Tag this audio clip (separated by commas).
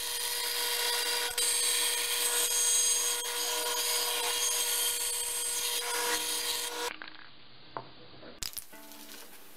Wood, Tools